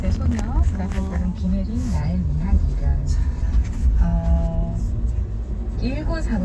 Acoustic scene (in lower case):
car